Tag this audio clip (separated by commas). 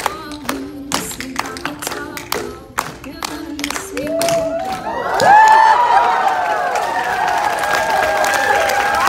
tap dancing